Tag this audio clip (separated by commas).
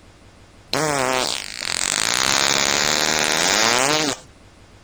Fart